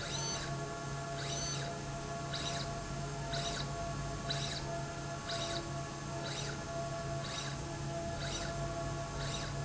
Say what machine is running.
slide rail